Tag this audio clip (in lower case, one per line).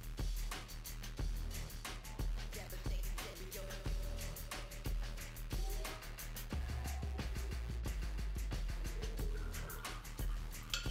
music